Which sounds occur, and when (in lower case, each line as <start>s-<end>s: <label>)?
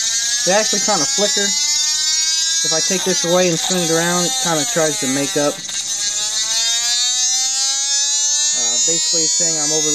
0.0s-9.9s: mechanisms
0.0s-9.9s: siren
0.4s-1.6s: male speech
2.6s-5.5s: male speech
5.5s-5.8s: generic impact sounds
8.5s-9.9s: male speech